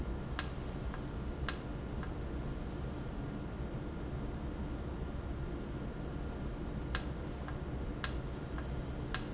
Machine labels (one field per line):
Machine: valve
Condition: normal